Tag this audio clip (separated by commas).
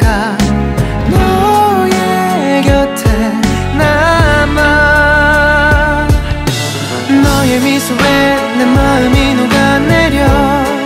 Music